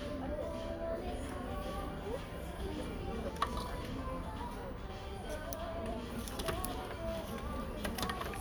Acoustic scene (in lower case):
crowded indoor space